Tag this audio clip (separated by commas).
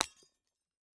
Glass, Shatter